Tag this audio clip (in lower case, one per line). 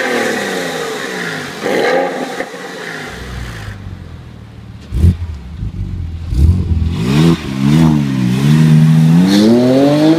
car passing by